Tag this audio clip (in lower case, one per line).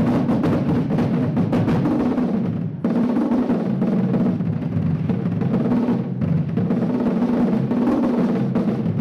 drum
drum roll
percussion